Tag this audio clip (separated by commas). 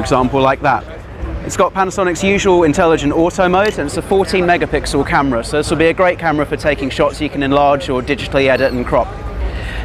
Speech, Single-lens reflex camera